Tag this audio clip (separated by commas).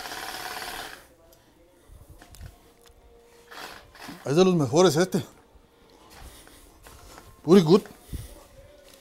Speech